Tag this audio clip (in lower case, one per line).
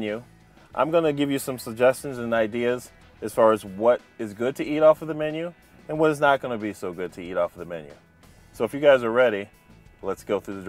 speech
music